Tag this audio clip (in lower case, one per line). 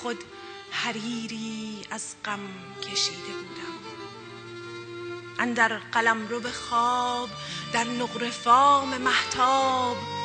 music
violin
musical instrument
speech